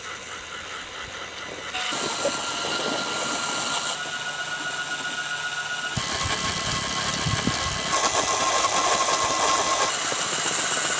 Series of various whirring noises